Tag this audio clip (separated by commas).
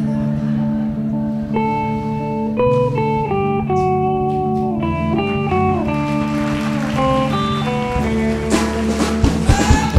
Music